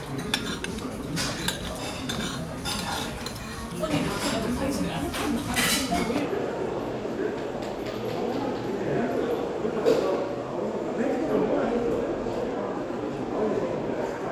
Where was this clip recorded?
in a crowded indoor space